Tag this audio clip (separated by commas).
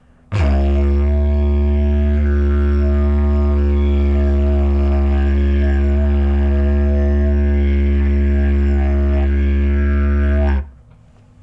Musical instrument, Music